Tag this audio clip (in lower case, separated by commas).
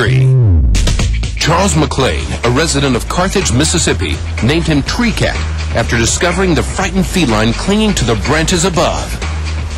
speech, music